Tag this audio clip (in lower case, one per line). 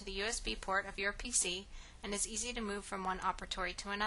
speech